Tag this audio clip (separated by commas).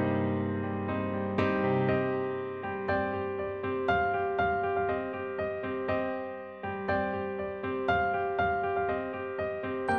Music